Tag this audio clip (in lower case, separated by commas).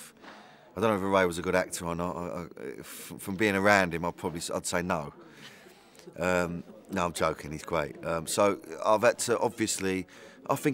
speech